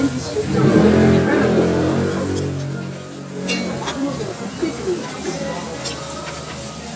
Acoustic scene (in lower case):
restaurant